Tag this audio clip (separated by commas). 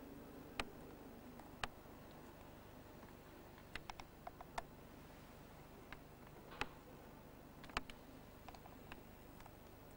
Silence, outside, urban or man-made